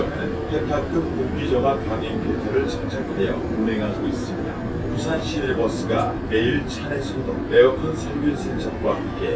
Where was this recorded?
on a bus